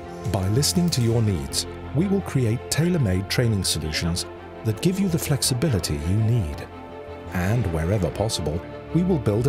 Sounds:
Music, Speech

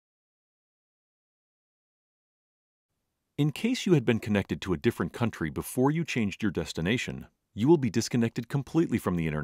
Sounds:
Speech

